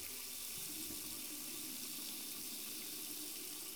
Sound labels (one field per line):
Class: water tap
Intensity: high